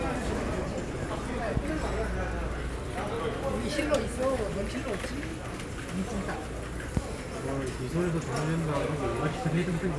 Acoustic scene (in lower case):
crowded indoor space